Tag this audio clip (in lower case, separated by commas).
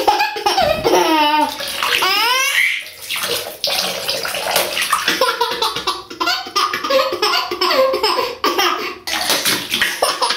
baby laughter